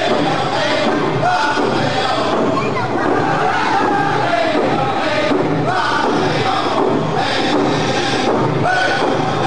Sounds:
musical instrument, drum, male singing, speech, music

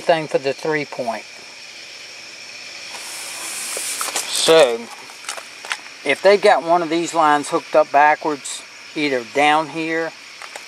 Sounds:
speech

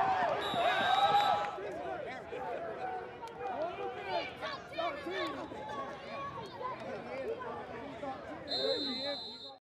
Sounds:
speech

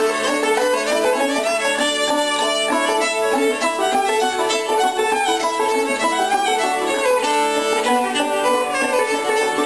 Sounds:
musical instrument, music, fiddle

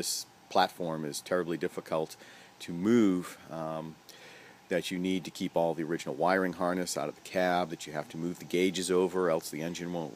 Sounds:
speech

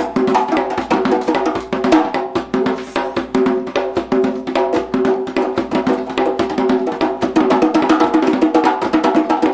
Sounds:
playing djembe

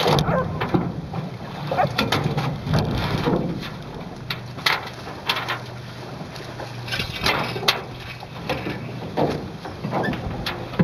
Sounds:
vehicle, canoe, rowboat, water vehicle

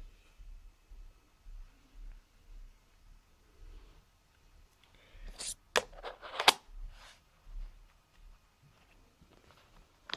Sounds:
inside a small room

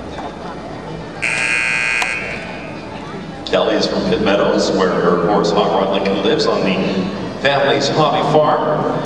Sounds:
speech

